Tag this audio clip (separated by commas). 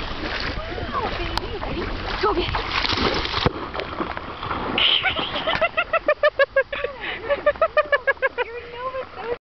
Speech